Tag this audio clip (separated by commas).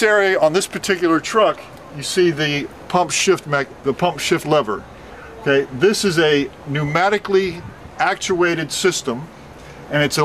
Speech